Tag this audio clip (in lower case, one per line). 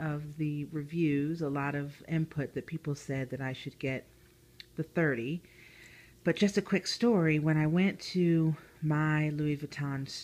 speech